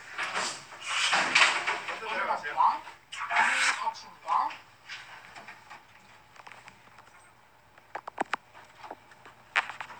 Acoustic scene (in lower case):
elevator